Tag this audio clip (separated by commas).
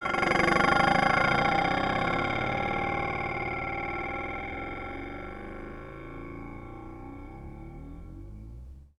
home sounds, dishes, pots and pans